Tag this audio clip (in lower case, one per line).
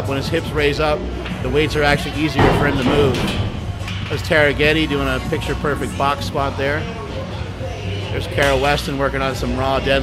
speech
music